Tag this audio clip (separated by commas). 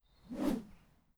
swoosh